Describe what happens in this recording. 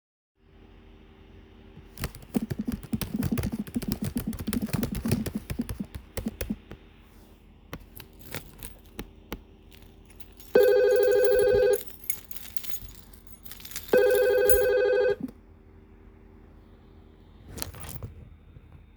i was typing using my keyboard when i took my keys and my phone rang